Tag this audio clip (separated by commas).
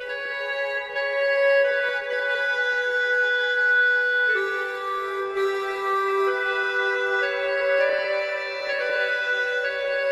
Music